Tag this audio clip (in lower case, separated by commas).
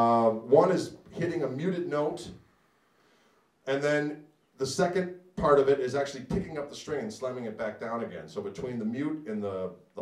speech